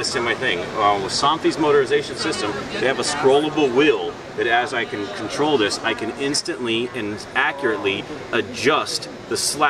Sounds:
speech

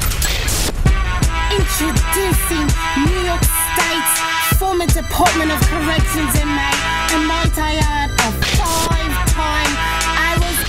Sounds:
rapping
music

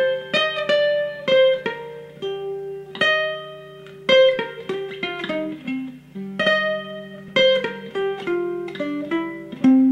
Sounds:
mandolin
music
guitar

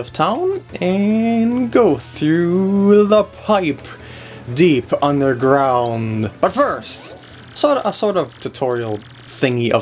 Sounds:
music
speech

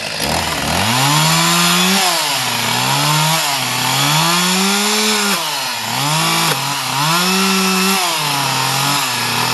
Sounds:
chainsaw
tools
chainsawing trees

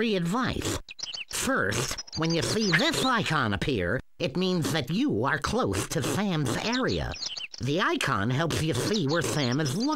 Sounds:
speech

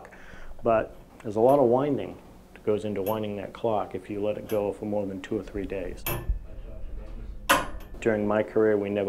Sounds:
speech

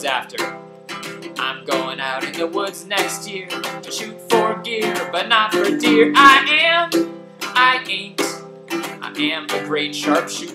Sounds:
acoustic guitar
music
plucked string instrument
singing
speech
musical instrument
guitar

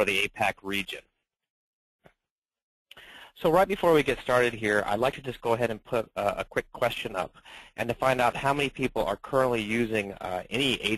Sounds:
speech

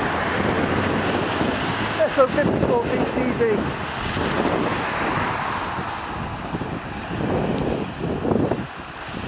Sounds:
vehicle
speech

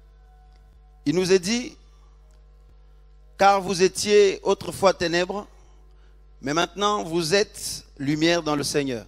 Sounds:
speech

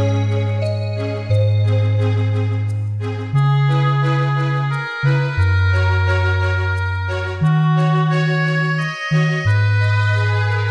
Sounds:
background music
music

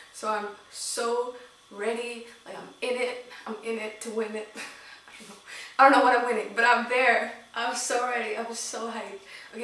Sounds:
speech

